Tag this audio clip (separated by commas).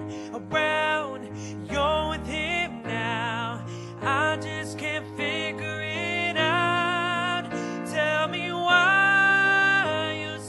Music